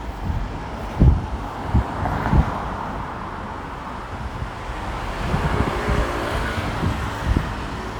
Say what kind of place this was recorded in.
street